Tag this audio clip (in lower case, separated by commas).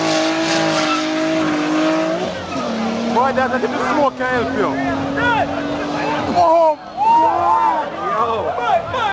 vehicle, car, speech